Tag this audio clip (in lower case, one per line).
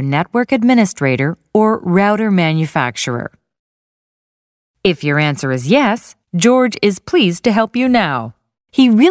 speech